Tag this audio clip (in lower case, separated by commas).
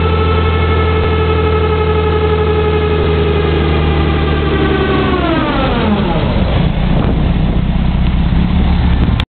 truck, vehicle